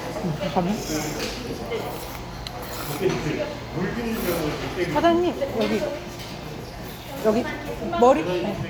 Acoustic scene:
restaurant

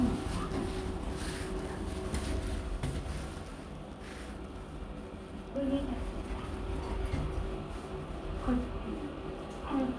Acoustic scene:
elevator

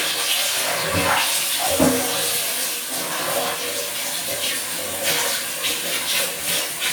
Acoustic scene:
restroom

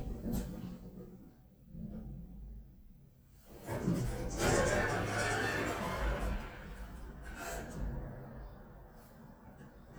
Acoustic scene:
elevator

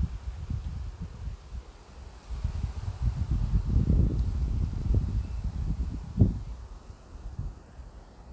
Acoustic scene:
residential area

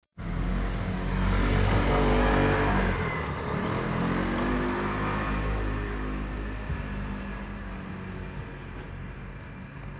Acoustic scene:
residential area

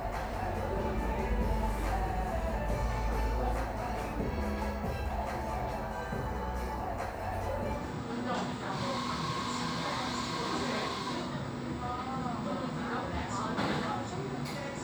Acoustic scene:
cafe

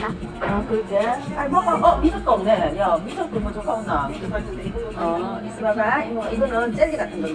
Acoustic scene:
restaurant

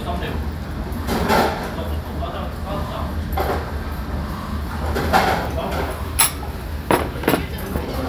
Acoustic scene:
restaurant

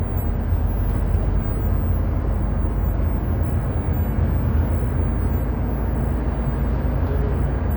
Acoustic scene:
bus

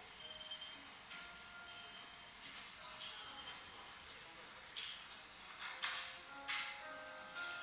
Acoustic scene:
cafe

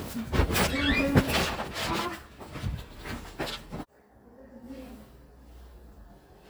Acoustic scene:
elevator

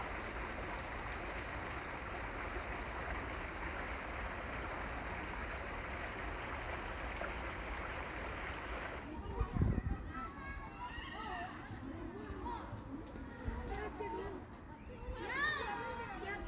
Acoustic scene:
park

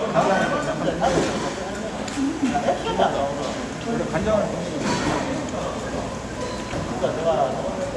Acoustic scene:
restaurant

